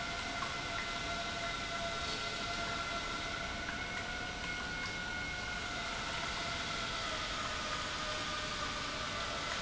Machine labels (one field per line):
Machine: pump